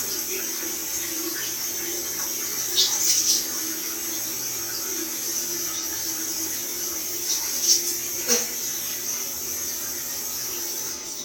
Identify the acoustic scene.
restroom